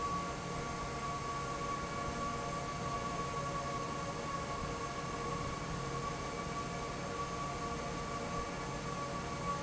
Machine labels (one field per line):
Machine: fan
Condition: normal